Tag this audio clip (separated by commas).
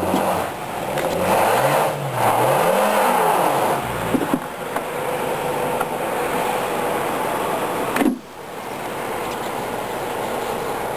Car, outside, rural or natural, Vehicle